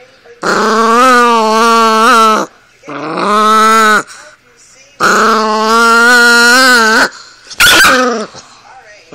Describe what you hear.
A duck is quacking loudly and screeching